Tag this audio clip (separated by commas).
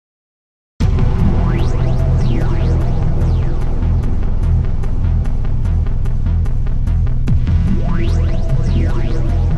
Music